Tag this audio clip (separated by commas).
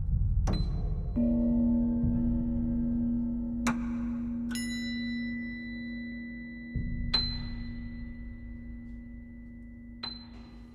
Music, Percussion